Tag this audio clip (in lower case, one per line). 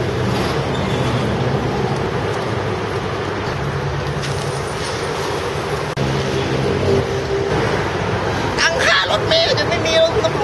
speech